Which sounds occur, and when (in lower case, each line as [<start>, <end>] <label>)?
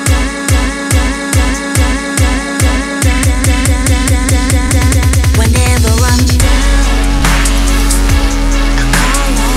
[0.00, 6.95] female singing
[0.00, 9.55] music
[8.87, 9.55] female singing